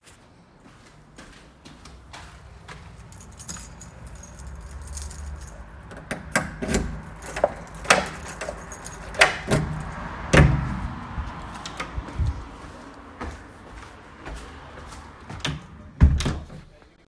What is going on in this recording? I walked toward my house and grabbed my keys. I inserted the key into the lock, unlocked the door, and entered. Finally, I walked inside and closed the door behind me.